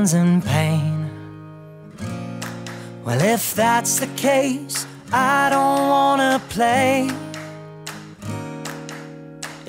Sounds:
Music

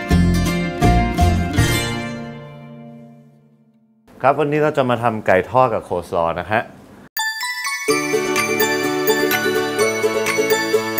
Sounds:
Music, Speech

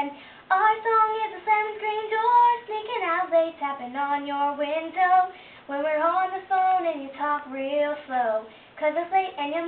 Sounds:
Female singing

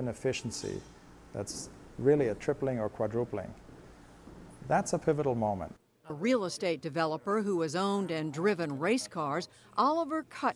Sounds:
Speech

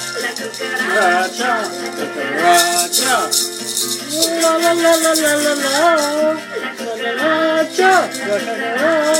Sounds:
Music, Maraca

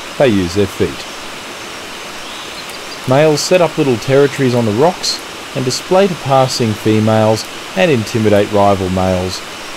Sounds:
Stream

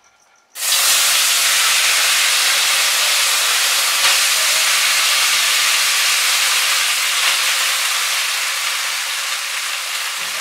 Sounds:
people eating noodle

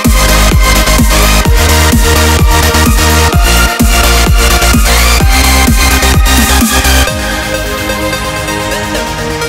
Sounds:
pumping water

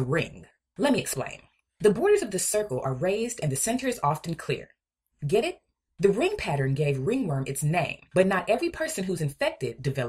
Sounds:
Narration

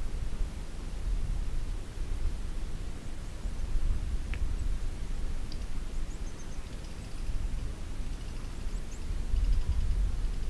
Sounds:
alligators

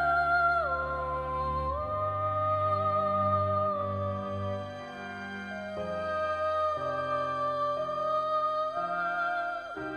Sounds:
Music, Sad music

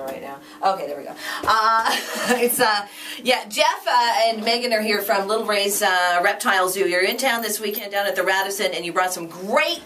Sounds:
Speech, inside a small room

